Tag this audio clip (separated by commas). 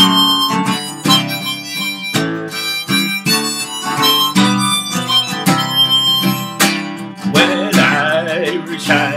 Music, Guitar, Plucked string instrument, Musical instrument, Strum